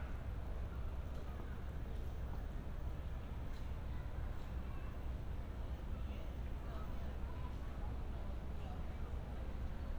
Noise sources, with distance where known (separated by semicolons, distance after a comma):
person or small group talking, far